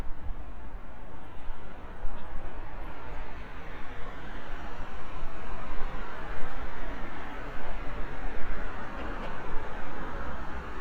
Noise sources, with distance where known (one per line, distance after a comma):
medium-sounding engine